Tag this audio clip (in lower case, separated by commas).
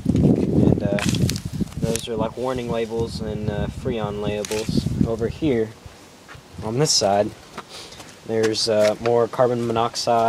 speech